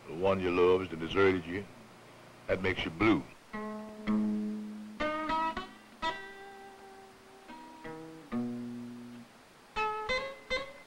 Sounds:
Speech, Music

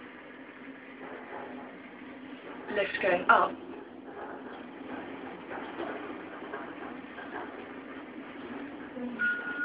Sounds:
Speech

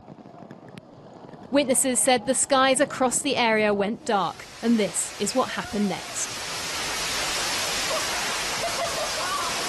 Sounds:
Speech

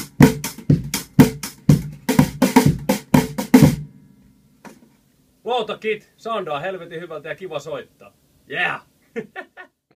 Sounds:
Speech, Music

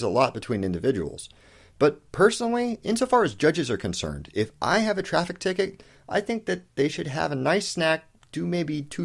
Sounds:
Speech

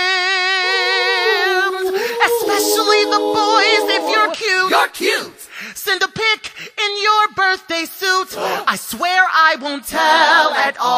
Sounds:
Music

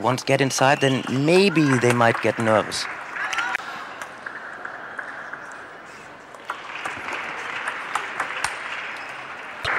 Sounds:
Speech

